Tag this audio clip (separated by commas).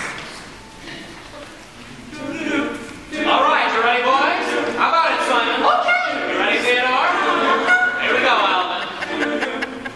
Speech